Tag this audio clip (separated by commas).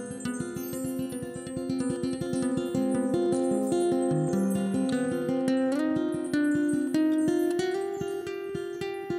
Blues, Music